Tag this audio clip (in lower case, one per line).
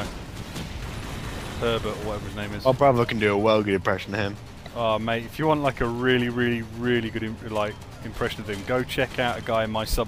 speech